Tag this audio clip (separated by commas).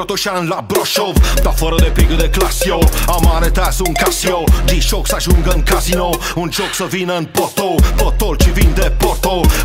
Music